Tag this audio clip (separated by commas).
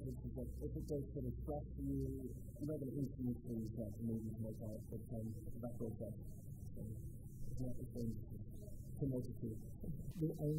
Speech